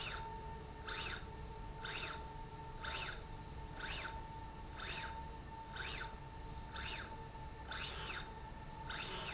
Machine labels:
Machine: slide rail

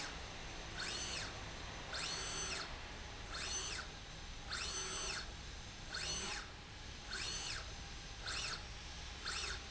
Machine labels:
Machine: slide rail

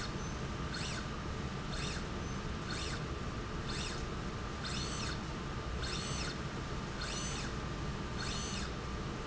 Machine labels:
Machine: slide rail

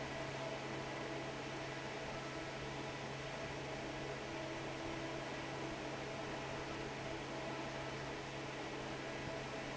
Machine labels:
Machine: fan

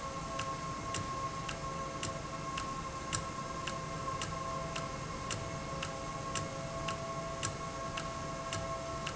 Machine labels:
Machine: valve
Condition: normal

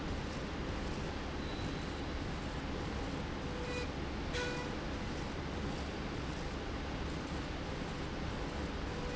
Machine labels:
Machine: slide rail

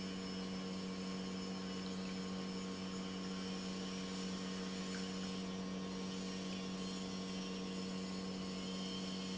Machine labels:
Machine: pump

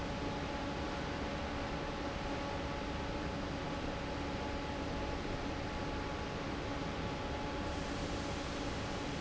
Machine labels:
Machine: fan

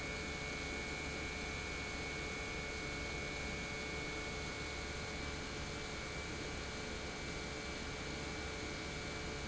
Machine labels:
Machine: pump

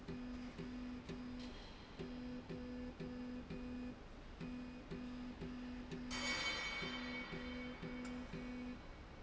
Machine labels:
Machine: slide rail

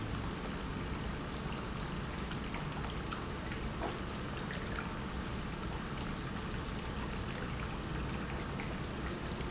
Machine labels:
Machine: pump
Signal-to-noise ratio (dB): -6 dB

